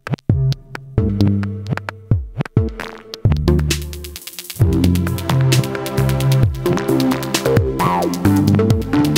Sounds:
Music, Synthesizer

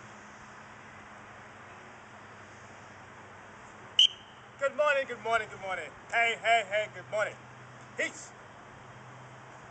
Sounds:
Speech

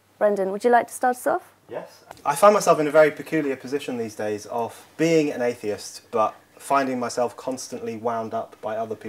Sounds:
Speech

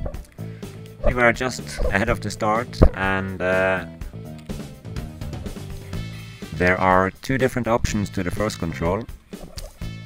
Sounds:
outside, urban or man-made, Speech, Music

